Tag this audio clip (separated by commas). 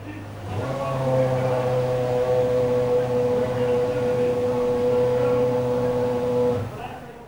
Accelerating, Car, Motor vehicle (road), Vehicle, auto racing, Engine